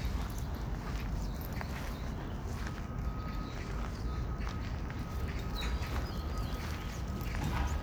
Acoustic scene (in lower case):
park